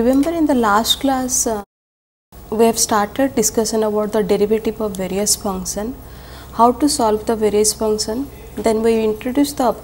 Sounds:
speech

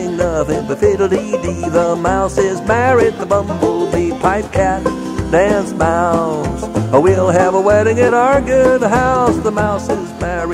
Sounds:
zither, pizzicato

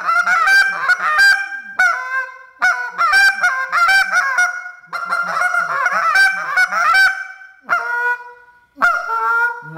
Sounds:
goose, fowl, honk

